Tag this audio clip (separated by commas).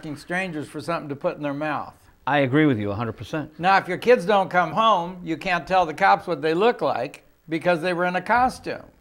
Speech